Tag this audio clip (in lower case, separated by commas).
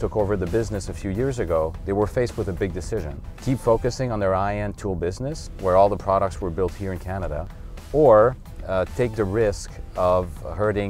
music, speech